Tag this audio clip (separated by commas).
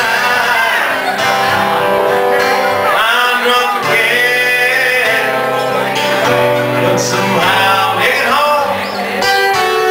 Music, Chink